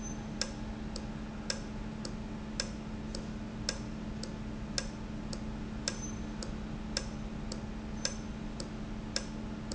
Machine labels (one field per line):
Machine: valve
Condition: normal